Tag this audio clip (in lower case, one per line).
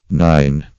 man speaking
speech
human voice